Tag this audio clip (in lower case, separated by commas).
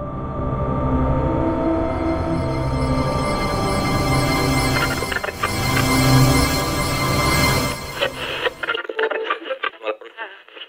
music, speech